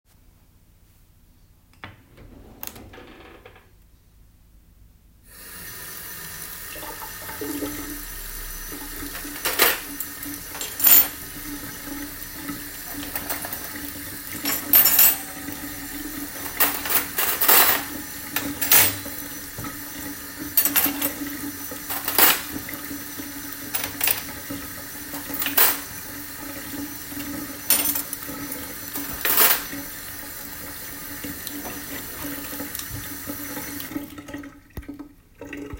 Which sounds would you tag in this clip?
running water, cutlery and dishes